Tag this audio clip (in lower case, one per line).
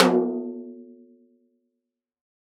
percussion
snare drum
music
musical instrument
drum